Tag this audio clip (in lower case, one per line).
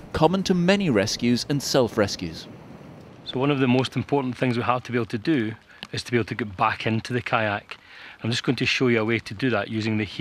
speech
music